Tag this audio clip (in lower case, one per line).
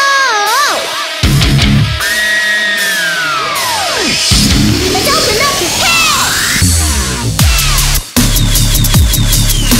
electronic music
dubstep
music